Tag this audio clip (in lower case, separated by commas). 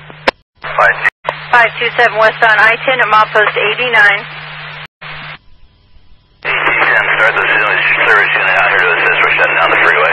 police radio chatter